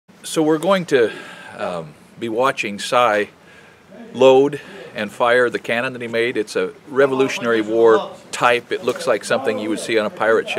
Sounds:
firing cannon

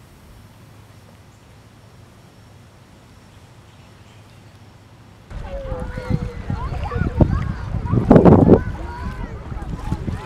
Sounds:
Speech

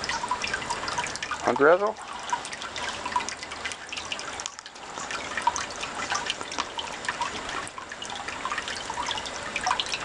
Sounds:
Speech

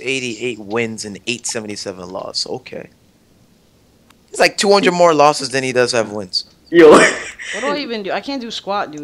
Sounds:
Speech

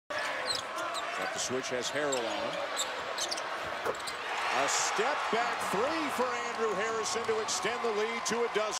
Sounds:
Speech

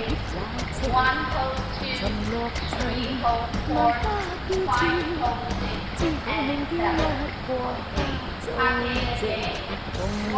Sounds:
Speech, Music

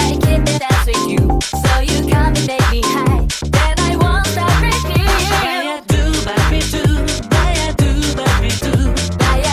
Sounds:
Music

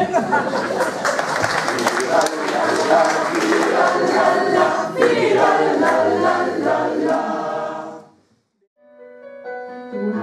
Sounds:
Choir, singing choir, Vocal music, Music, Gospel music, Christian music, Singing

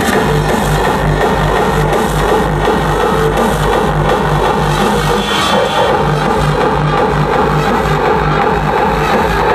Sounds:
Techno, Electronic music, Music

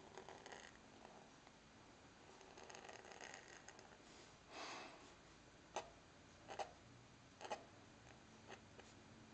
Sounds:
Writing

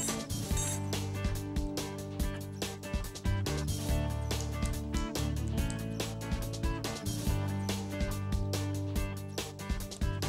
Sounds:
Music

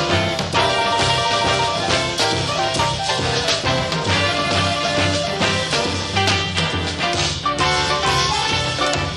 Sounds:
Music, Blues

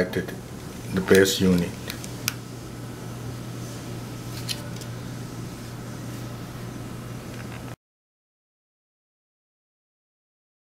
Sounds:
Speech

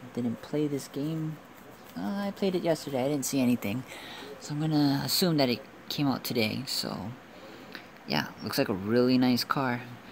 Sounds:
Speech

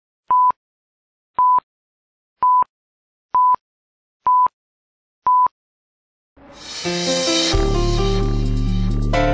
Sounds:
DTMF

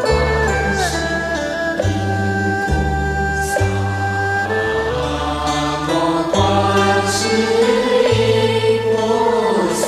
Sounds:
Mantra, Music

